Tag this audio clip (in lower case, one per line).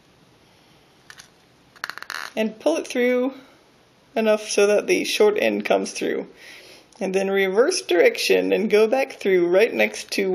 speech
inside a small room